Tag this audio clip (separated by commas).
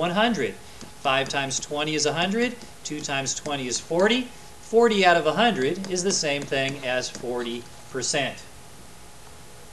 Writing, Speech